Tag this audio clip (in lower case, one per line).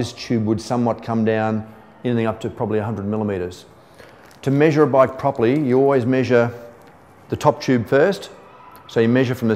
speech